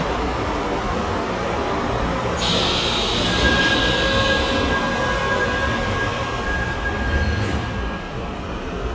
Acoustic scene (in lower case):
subway station